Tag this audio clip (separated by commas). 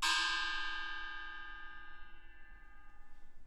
Percussion, Musical instrument, Gong, Music